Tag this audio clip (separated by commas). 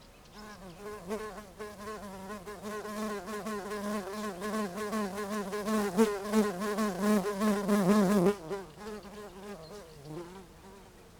Buzz, Wild animals, Animal, Insect